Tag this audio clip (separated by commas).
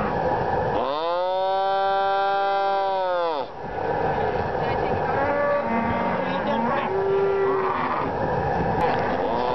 livestock, cattle mooing, Moo, bovinae